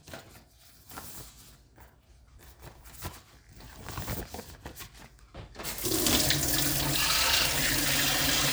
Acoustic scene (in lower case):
kitchen